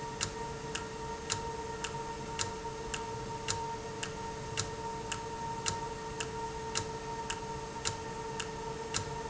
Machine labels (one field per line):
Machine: valve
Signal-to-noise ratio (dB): -6 dB